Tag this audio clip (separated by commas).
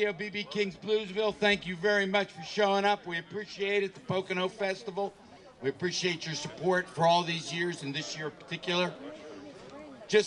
Speech